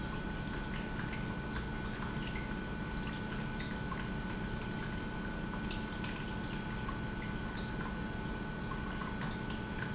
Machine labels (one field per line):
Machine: pump